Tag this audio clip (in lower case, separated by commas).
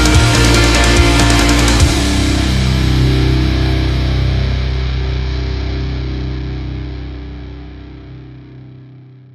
angry music, music